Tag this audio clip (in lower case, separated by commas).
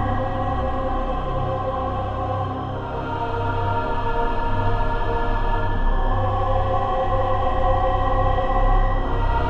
music